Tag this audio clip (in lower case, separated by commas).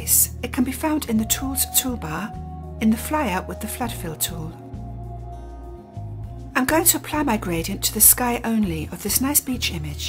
speech, music